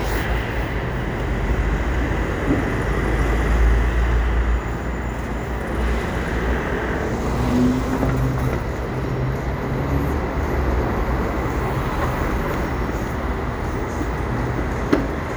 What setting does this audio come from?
street